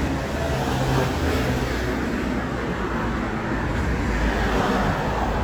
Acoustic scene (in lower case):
street